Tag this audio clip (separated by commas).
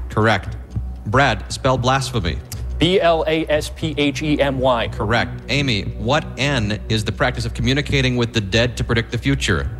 Speech